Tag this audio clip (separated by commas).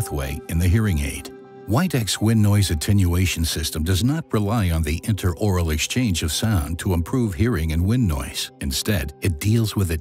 Music, Speech